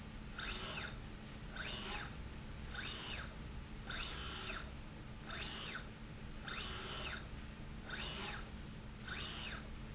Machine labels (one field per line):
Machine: slide rail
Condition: normal